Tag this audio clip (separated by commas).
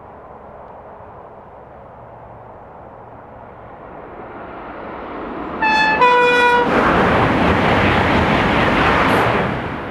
Vehicle, Rail transport, Toot, honking, Train